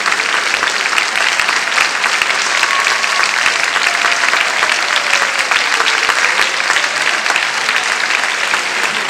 Impassioned applause